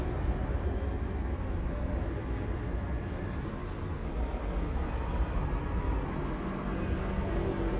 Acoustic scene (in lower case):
street